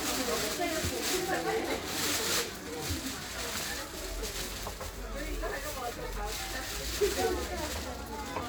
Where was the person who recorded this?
in a crowded indoor space